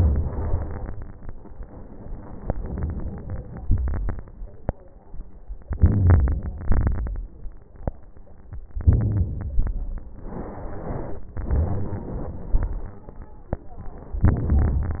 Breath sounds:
2.43-3.63 s: inhalation
3.63-4.30 s: exhalation
3.66-4.23 s: crackles
5.66-6.66 s: inhalation
5.80-6.61 s: crackles
6.66-7.27 s: crackles
6.69-7.58 s: exhalation
8.84-9.45 s: crackles
8.85-9.59 s: inhalation
9.57-10.30 s: exhalation
9.58-10.15 s: crackles
14.25-14.99 s: inhalation
14.25-14.99 s: crackles

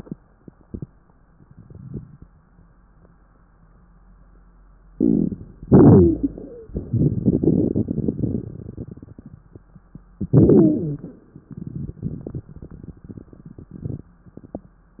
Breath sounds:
4.88-5.65 s: inhalation
4.88-5.65 s: crackles
5.63-9.57 s: exhalation
5.86-6.69 s: wheeze
6.83-9.35 s: crackles
10.18-11.16 s: wheeze
10.18-11.37 s: inhalation

